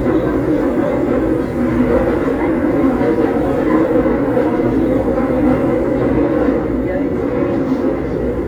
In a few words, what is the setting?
subway train